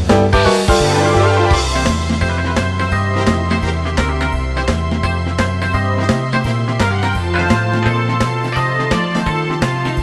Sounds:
Music, Rhythm and blues

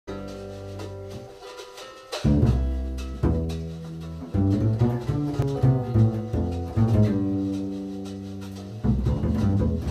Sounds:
Bowed string instrument, Plucked string instrument, playing double bass, Music, Musical instrument, Double bass

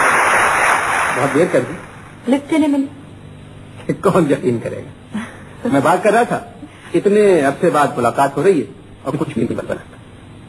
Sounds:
Speech

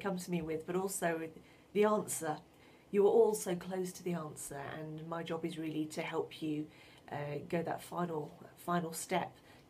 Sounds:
Speech

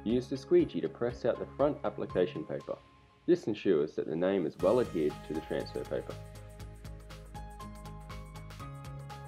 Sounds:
Music, Speech

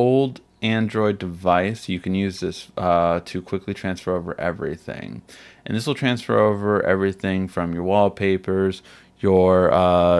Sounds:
inside a small room, Speech

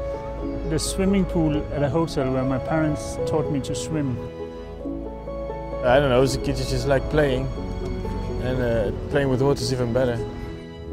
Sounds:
Speech, Music

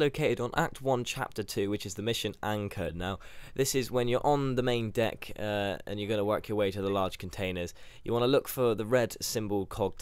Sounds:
Speech

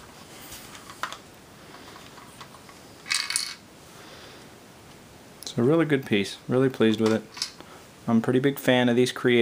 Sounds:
Speech

